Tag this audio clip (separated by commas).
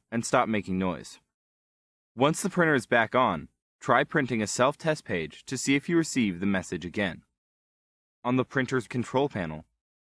Speech